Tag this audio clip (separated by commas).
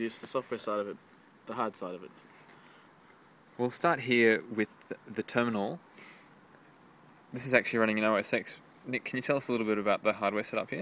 Speech